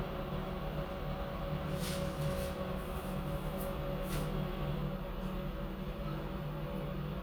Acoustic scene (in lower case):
elevator